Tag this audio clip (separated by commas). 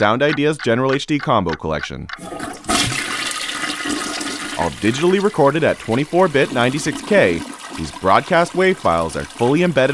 Speech, Toilet flush